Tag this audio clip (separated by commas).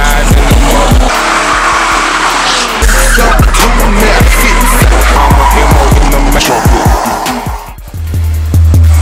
Hip hop music, Skidding, Vehicle, Car, Music